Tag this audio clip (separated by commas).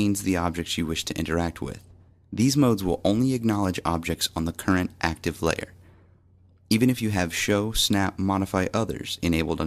Speech